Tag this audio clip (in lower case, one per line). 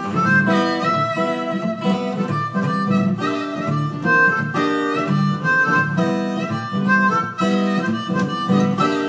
blues
music
harmonica
plucked string instrument
guitar